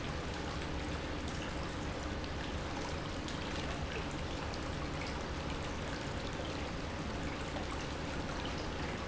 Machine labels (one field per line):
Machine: pump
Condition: normal